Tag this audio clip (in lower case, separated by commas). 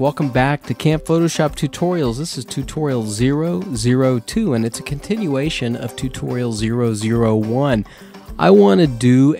speech, music